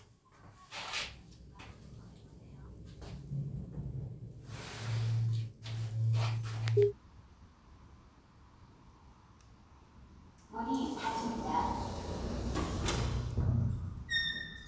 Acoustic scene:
elevator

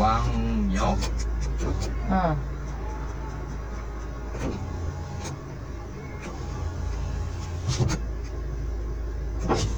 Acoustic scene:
car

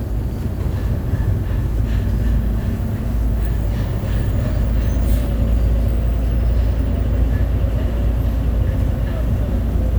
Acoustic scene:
bus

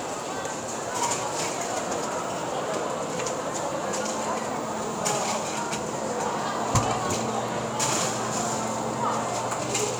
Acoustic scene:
cafe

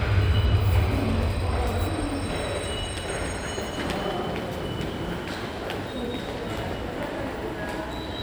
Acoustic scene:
subway station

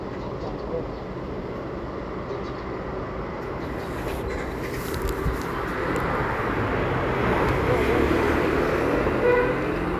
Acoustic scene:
residential area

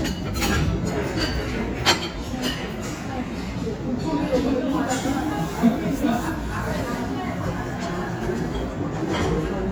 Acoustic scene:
restaurant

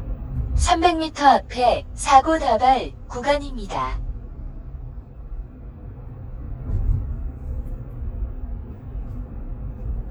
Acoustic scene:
car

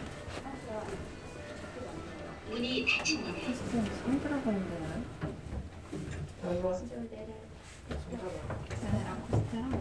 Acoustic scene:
elevator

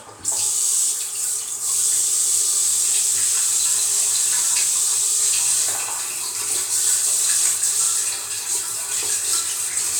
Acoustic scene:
restroom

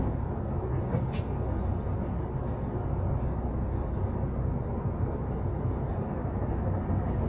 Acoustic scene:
bus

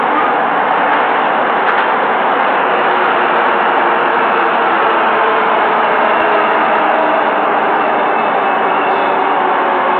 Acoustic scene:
subway station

